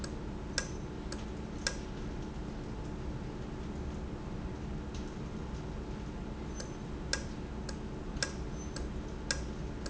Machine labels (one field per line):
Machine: valve